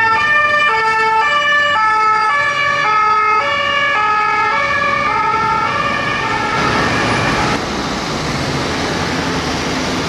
An emergency vehicle driving down a street with sirens on